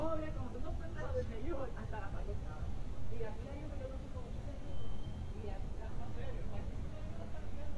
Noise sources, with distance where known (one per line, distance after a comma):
person or small group talking, near